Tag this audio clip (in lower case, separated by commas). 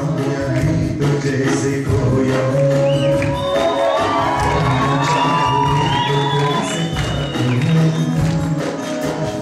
male singing, music